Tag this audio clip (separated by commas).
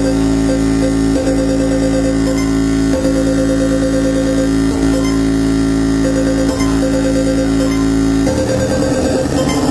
Music